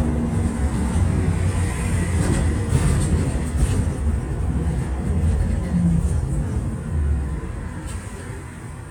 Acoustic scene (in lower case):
bus